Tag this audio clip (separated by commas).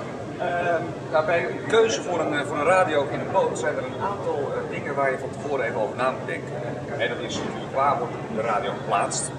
Speech